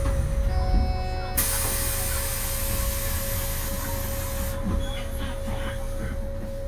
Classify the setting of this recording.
bus